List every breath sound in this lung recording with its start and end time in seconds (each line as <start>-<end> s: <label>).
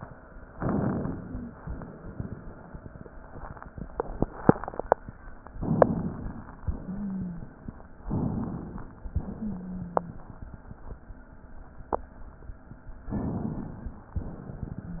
0.48-1.57 s: inhalation
0.98-1.51 s: wheeze
1.59-3.56 s: exhalation
5.56-6.65 s: inhalation
6.65-8.03 s: exhalation
6.79-7.51 s: wheeze
8.07-9.08 s: inhalation
9.10-11.06 s: exhalation
9.36-10.22 s: wheeze
13.11-14.13 s: inhalation